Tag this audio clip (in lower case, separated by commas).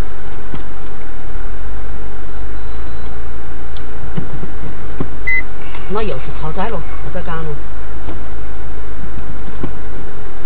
speech, car, vehicle